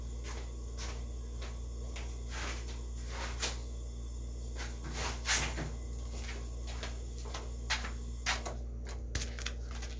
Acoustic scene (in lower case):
kitchen